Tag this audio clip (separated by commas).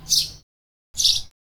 Bird vocalization, Bird, Animal, Wild animals